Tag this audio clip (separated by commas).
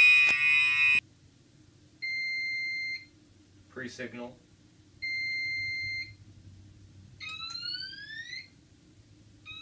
Buzzer, Speech, Fire alarm